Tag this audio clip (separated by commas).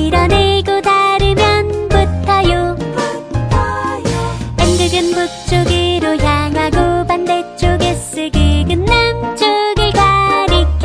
Music, Music for children